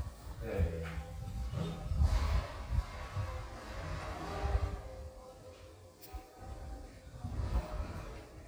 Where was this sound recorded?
in an elevator